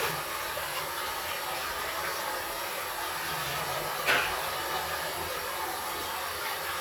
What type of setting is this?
restroom